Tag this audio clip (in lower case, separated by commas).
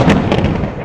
thunder, thunderstorm